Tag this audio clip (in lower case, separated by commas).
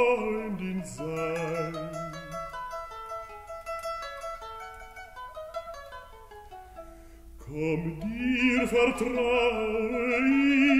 zither, pizzicato